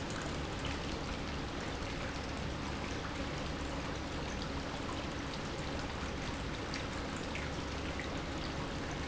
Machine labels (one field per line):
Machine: pump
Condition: normal